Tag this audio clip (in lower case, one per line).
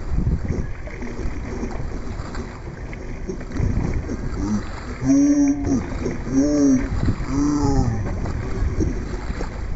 canoe
boat
kayak rowing